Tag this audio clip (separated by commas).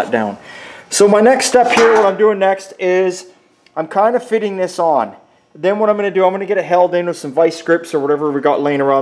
inside a large room or hall, Speech